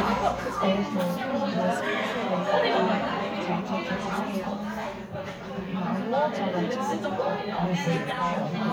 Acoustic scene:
crowded indoor space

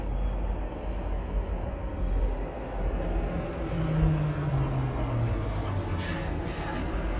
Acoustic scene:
street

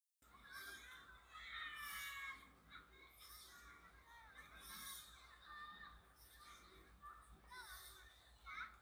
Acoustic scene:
residential area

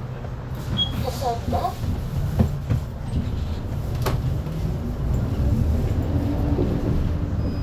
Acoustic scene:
bus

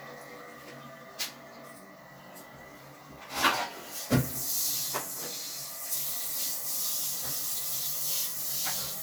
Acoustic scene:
restroom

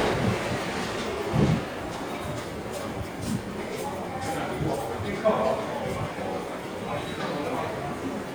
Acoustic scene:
subway station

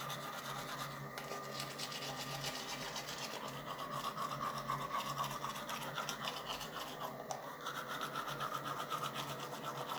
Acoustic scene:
restroom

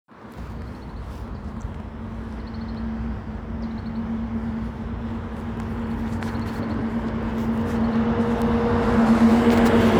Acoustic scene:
residential area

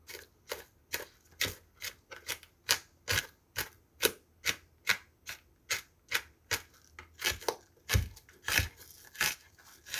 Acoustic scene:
kitchen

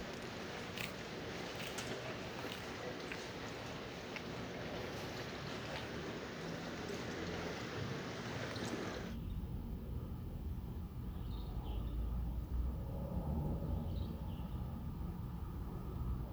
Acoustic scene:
residential area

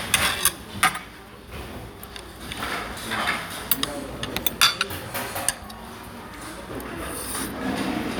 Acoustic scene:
restaurant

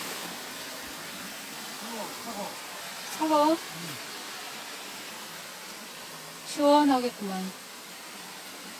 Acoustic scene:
park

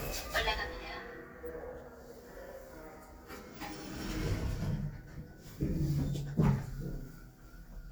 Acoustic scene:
elevator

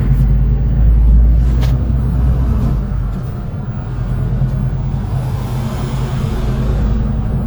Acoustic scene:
bus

